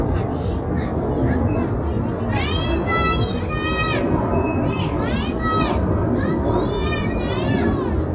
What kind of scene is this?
residential area